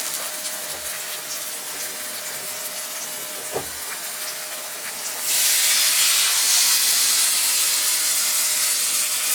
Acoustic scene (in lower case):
kitchen